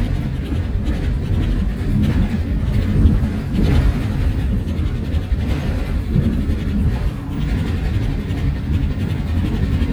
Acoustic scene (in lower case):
bus